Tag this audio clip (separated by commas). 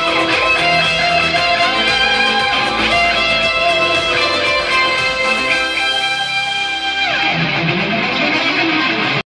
Music, Plucked string instrument, Musical instrument, Electric guitar, Guitar